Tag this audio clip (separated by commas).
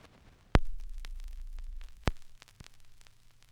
Crackle